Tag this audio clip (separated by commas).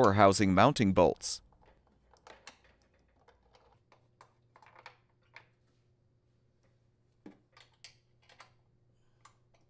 Speech